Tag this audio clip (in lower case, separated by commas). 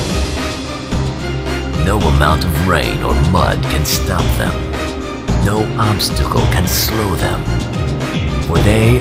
music, speech